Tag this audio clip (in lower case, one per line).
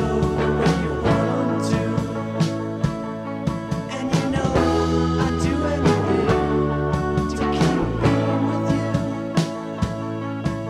music